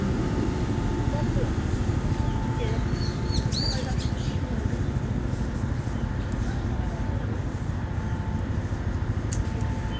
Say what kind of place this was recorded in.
residential area